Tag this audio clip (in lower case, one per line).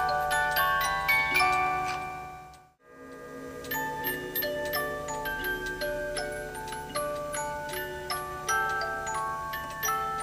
music
clock